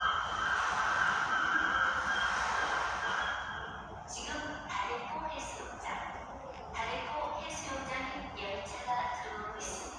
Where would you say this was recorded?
in a subway station